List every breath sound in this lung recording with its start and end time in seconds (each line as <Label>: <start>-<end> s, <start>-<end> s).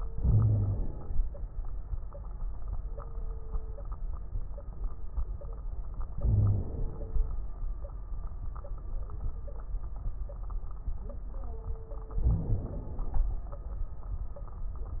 Inhalation: 0.12-1.17 s, 6.16-7.14 s, 12.20-13.21 s
Wheeze: 0.21-0.72 s, 6.25-6.66 s
Crackles: 12.20-13.21 s